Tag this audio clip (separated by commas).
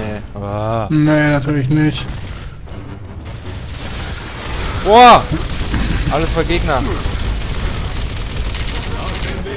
Speech